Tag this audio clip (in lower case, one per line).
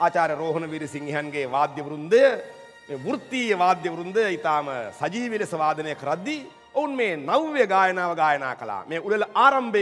speech
music